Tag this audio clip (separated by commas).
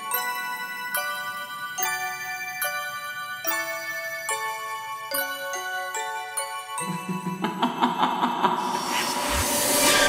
Jingle